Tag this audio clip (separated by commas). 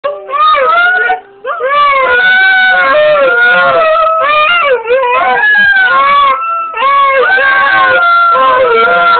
Domestic animals, Dog, canids, Animal, inside a small room, Howl